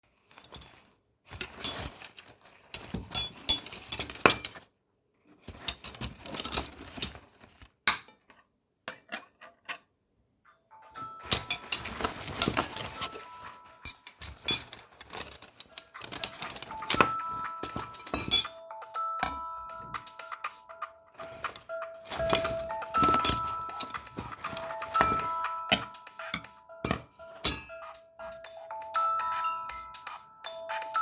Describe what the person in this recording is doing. I started putting a plate and a few clean utensils. In the middle of doing so someone called me.